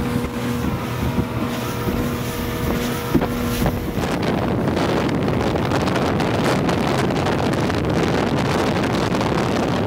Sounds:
Water vehicle, Vehicle, speedboat

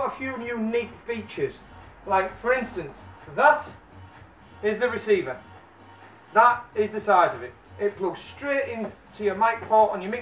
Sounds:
Music, Speech

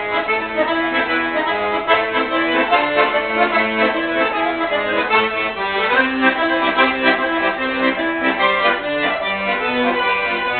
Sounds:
Music

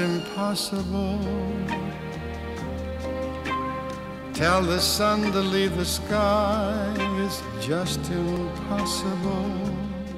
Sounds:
Sad music, Music

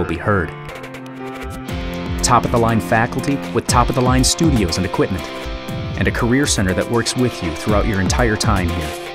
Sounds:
Music, Theme music, Speech

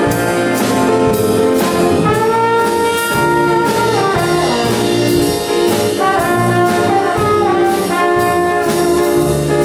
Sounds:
Music

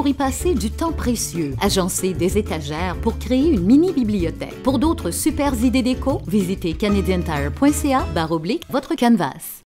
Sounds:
Speech, Music

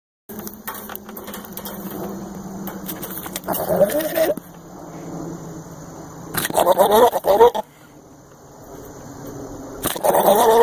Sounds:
Animal, Goat

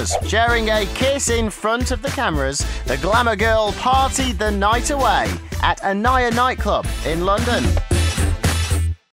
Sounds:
Music, Speech

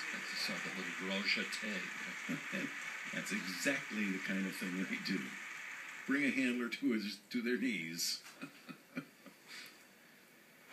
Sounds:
Speech

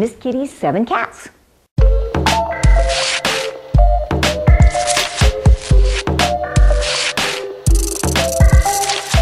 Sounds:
Music, Speech

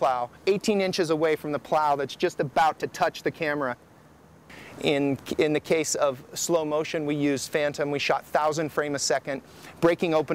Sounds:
Speech

